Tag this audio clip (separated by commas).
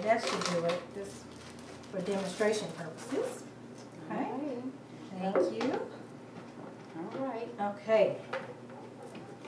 Blender, inside a small room